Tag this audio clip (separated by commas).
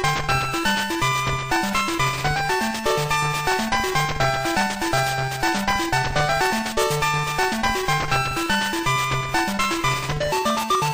Video game music